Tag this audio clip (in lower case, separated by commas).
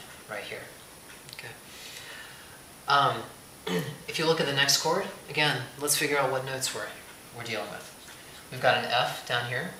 speech, inside a small room